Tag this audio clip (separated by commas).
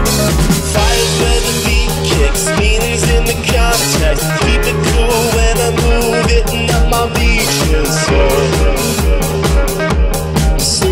Music